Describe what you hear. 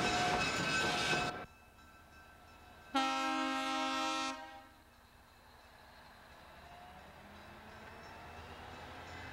Ding of train crossing, then train horn blaring